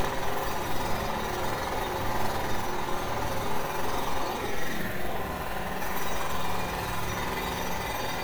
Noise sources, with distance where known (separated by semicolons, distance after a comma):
jackhammer, near